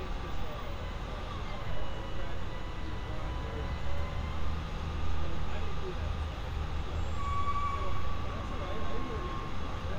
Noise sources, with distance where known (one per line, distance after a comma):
large-sounding engine, near
person or small group talking, far